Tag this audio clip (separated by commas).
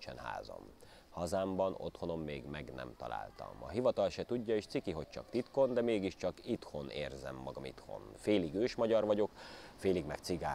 Speech